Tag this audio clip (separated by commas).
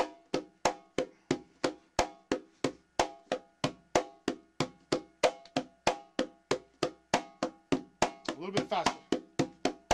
playing congas